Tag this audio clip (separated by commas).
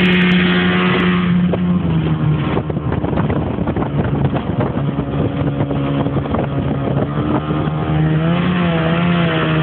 Ship, Vehicle, Motorboat